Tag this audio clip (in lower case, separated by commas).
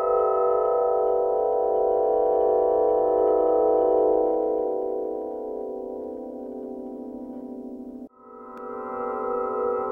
music